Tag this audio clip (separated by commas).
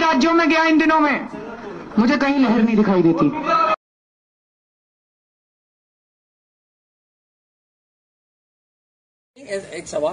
Speech